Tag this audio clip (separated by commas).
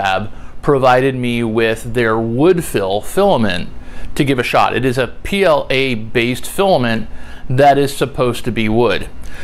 Speech